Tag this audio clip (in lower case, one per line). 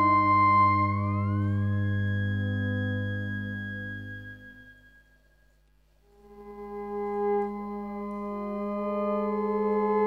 playing theremin